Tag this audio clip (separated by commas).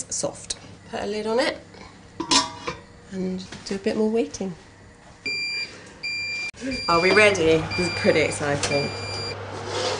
Speech, inside a small room